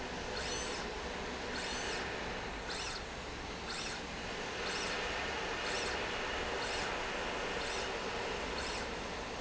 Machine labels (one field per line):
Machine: slide rail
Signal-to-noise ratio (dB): -6 dB